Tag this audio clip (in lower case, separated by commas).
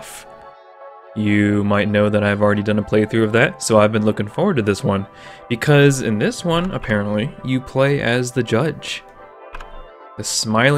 music, speech